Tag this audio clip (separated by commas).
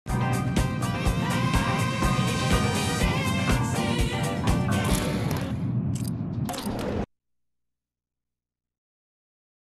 Musical instrument, Plucked string instrument, Guitar, Music